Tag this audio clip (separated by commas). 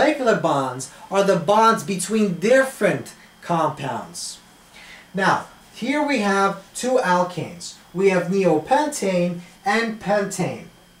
Speech